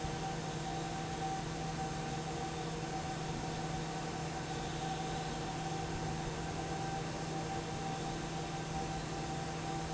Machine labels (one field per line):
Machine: fan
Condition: normal